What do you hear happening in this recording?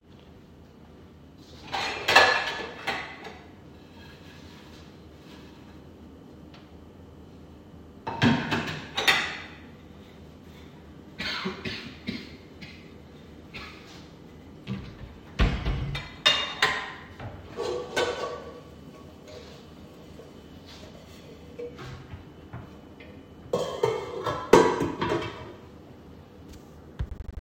Cutlery and dish sounds are audible. In the middle of the recording, a cough is heard as an unwanted non-target sound. After that, the cutlery and dish sounds continue.